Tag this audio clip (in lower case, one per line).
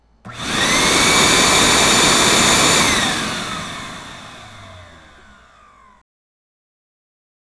home sounds